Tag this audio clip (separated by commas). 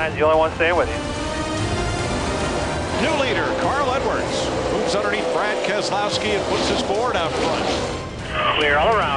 Speech